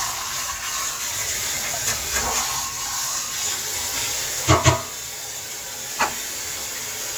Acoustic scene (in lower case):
kitchen